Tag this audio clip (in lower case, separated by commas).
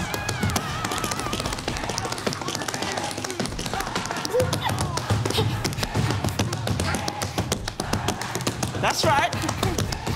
tap dancing